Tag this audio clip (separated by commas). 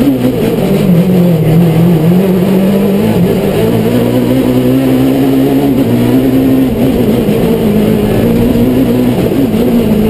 Motor vehicle (road), Car, Vehicle